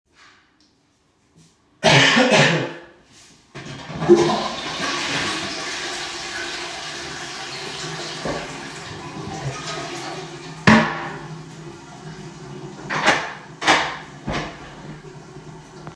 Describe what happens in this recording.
I coughed, flushed the toilet, closed it and opened door using keychain